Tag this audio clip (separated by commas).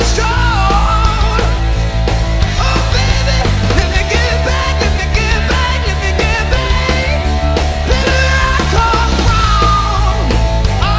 Rock and roll, Music